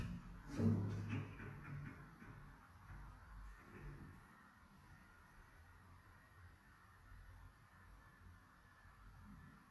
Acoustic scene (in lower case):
elevator